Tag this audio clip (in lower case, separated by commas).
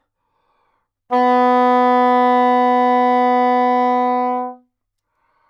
wind instrument, music, musical instrument